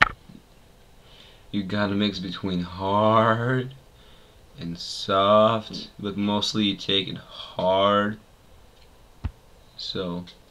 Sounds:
speech

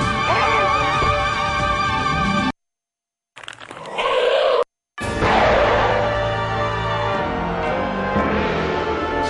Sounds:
music
inside a large room or hall

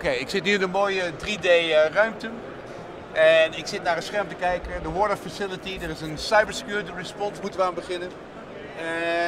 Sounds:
speech

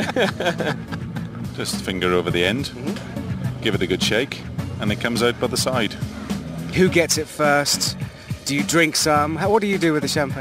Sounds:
music
speech

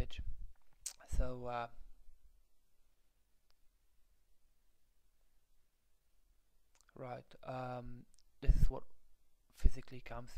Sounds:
speech

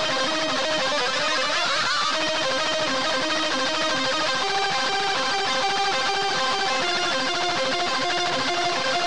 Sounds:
musical instrument
plucked string instrument
music

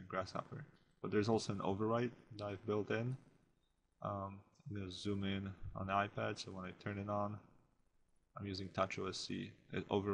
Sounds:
speech

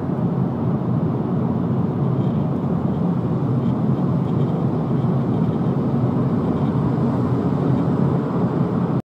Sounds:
rattle

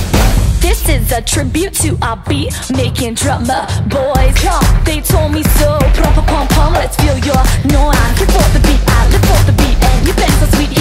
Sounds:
music

